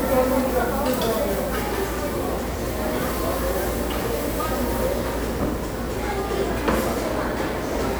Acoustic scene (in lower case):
restaurant